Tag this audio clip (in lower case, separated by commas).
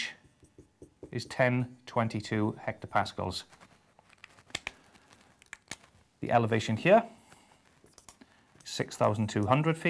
speech, inside a small room